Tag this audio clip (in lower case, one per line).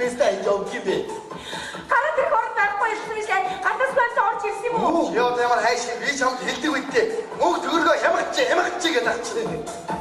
female speech
music
speech